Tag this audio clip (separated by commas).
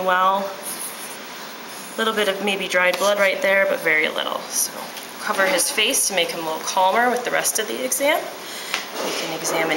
Speech